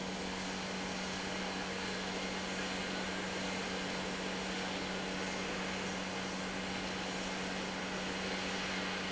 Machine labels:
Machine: pump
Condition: normal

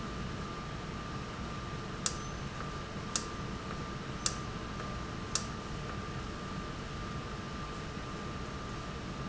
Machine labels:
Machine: valve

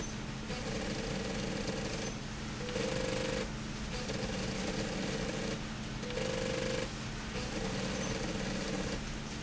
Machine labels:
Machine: slide rail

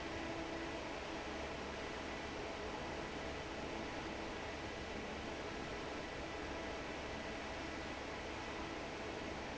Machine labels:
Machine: fan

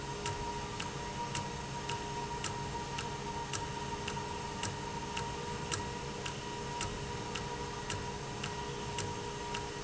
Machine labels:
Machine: valve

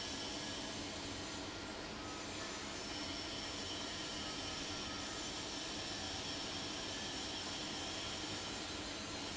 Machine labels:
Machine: fan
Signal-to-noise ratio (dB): 0 dB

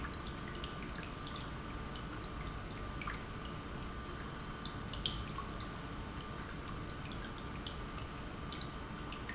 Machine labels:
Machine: pump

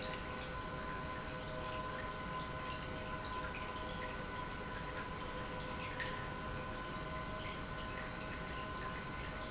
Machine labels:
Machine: pump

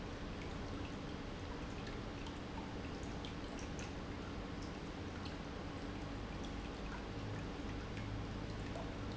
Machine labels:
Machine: pump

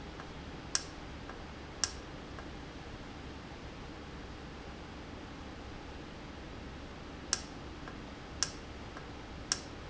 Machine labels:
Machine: valve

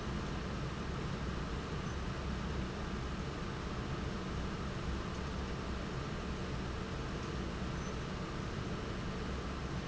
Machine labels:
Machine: fan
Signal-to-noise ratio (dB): -6 dB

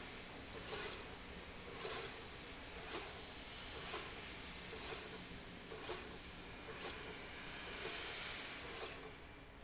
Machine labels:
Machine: slide rail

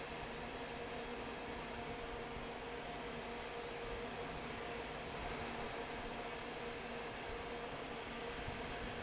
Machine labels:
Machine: fan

